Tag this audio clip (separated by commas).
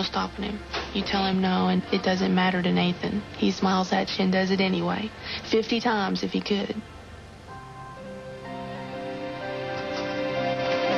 Speech, Music